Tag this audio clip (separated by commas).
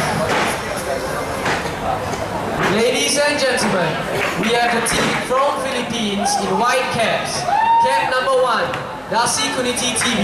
Speech